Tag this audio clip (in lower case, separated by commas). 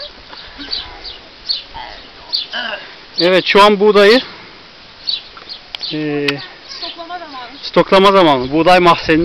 speech, bird, animal